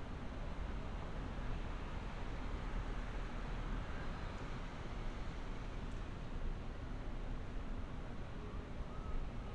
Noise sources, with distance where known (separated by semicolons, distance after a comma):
background noise